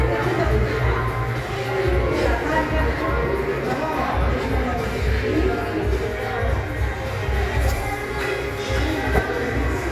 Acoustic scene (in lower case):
crowded indoor space